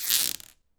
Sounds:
Squeak

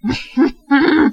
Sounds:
Laughter, Human voice

